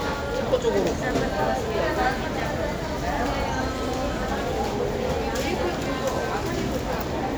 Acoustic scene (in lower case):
crowded indoor space